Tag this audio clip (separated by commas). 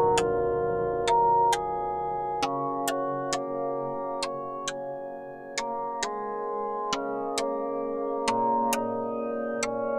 Music